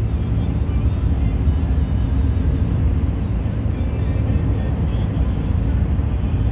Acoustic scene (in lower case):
bus